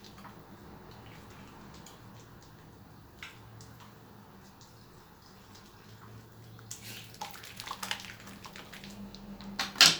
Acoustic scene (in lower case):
restroom